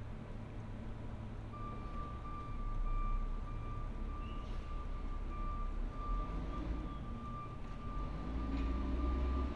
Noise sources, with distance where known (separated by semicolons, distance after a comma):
reverse beeper